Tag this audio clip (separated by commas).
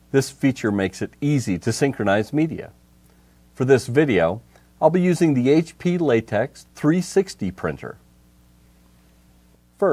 Speech